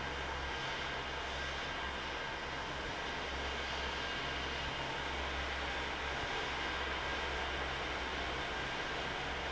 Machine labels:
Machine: fan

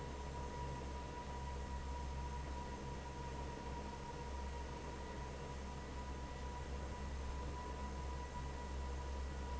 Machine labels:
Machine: fan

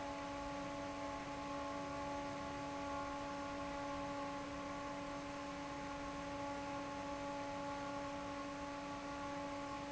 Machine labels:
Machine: fan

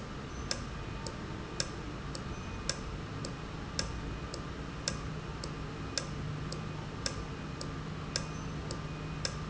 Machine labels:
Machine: valve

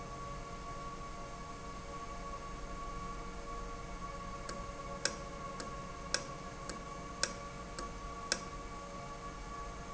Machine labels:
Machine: valve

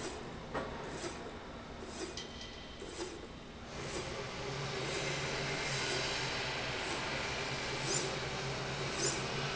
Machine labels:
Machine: slide rail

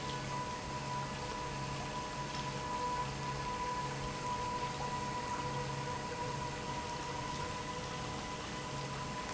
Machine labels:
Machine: pump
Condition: normal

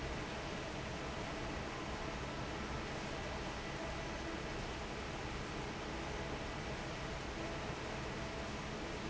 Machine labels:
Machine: fan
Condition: normal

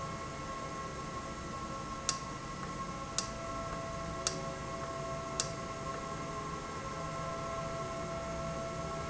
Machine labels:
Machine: valve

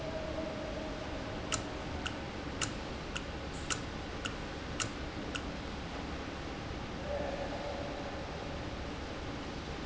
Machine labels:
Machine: valve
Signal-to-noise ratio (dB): -6 dB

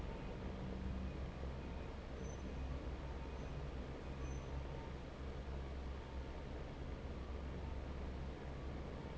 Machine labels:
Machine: fan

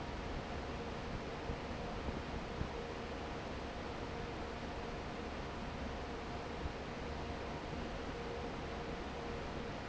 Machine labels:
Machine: fan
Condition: normal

